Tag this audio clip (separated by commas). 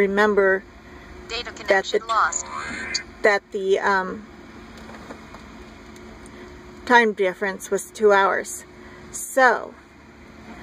Speech